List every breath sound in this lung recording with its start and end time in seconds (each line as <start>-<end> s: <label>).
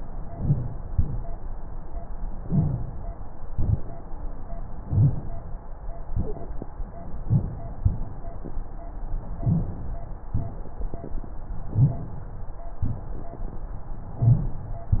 0.24-0.83 s: inhalation
0.24-0.83 s: crackles
0.85-1.44 s: exhalation
0.85-1.44 s: crackles
2.39-2.98 s: inhalation
2.39-2.98 s: crackles
3.44-4.03 s: exhalation
3.44-4.03 s: crackles
4.77-5.36 s: inhalation
4.77-5.36 s: crackles
6.12-6.71 s: exhalation
6.12-6.71 s: crackles
7.20-7.60 s: inhalation
7.20-7.60 s: crackles
7.77-8.43 s: exhalation
7.77-8.43 s: crackles
9.35-9.84 s: inhalation
9.35-9.84 s: crackles
10.30-10.79 s: exhalation
10.30-10.79 s: crackles
11.70-12.20 s: inhalation
11.70-12.20 s: crackles
12.79-13.28 s: exhalation
12.79-13.28 s: crackles
14.16-14.65 s: inhalation
14.16-14.65 s: crackles